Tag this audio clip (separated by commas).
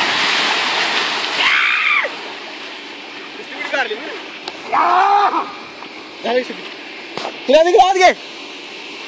Speech